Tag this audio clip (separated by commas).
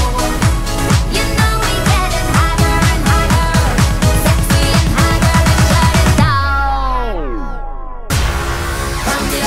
Music, Pop music